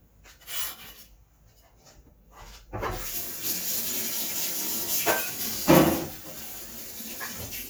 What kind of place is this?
kitchen